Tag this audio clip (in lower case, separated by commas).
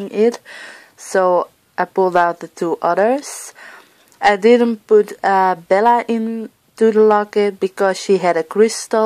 speech